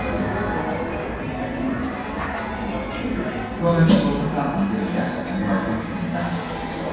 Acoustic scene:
cafe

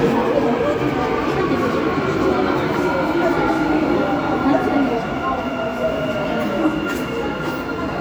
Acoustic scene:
subway station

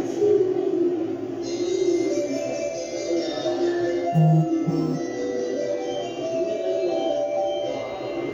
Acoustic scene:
subway station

